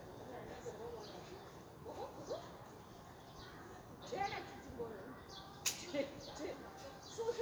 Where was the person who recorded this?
in a residential area